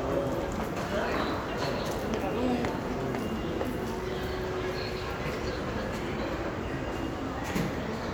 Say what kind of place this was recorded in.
crowded indoor space